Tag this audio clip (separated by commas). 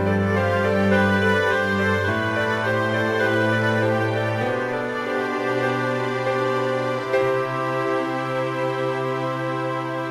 Music